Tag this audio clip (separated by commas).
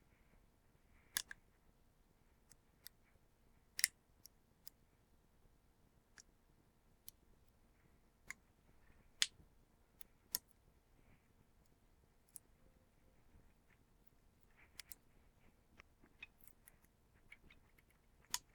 Crushing